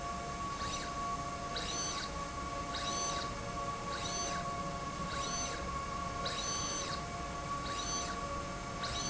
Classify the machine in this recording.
slide rail